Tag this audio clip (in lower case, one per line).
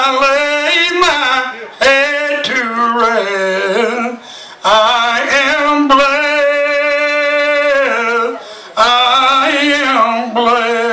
male singing